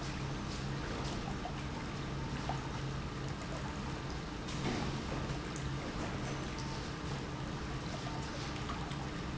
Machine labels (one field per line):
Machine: pump